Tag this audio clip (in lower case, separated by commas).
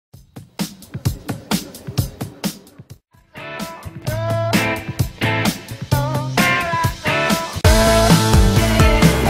music, funk